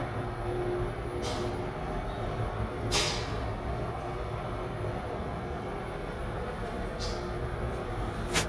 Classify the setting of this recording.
elevator